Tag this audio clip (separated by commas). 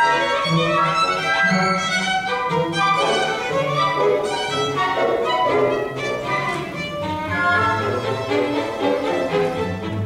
Music, Musical instrument, fiddle, Orchestra